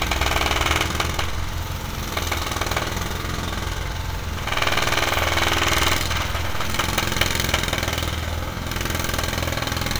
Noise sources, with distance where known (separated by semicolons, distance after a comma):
jackhammer, near